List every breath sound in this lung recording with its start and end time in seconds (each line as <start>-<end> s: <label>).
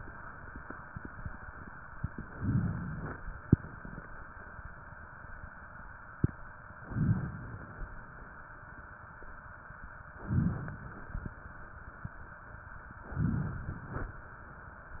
2.32-3.48 s: inhalation
6.83-7.93 s: inhalation
10.21-11.31 s: inhalation
13.07-14.18 s: inhalation